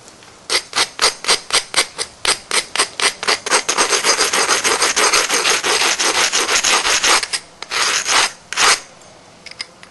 A scraping and grating sound